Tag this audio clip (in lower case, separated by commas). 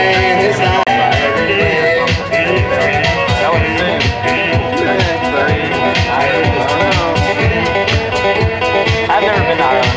violin, speech, musical instrument, music